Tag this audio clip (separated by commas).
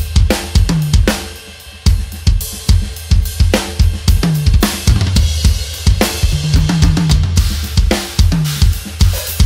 playing bass drum